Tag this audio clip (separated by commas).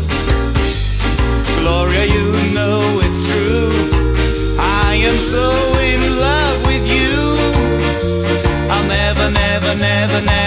Music